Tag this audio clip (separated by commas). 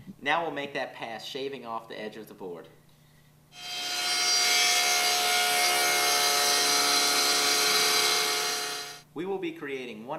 planing timber